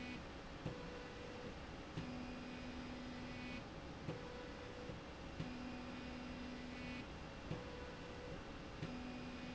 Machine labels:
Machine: slide rail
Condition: normal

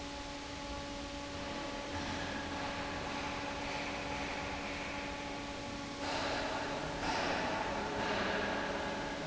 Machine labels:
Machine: fan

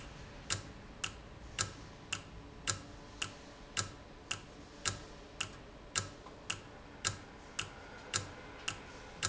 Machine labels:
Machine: valve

